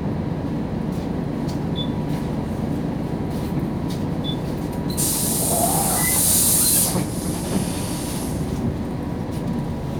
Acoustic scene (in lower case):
bus